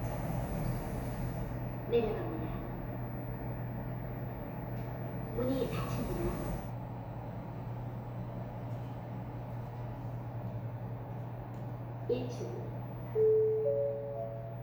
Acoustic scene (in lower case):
elevator